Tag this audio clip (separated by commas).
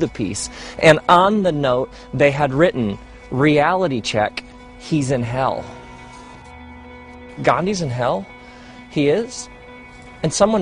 Music, Speech